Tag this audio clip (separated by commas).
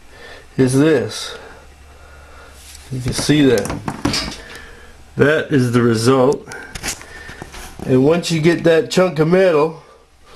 Speech